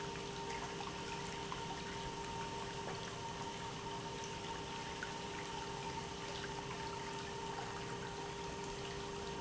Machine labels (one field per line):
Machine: pump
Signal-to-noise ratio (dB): 0 dB